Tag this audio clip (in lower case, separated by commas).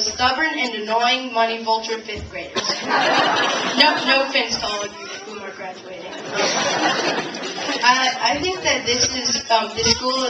child speech, speech, monologue